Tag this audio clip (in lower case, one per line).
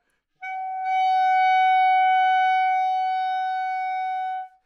music
woodwind instrument
musical instrument